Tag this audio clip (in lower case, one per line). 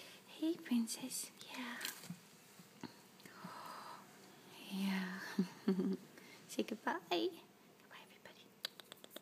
speech
whispering